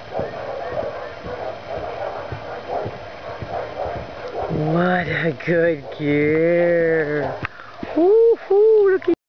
A horse is running and clopping, the wind is blowing, and an adult female speaks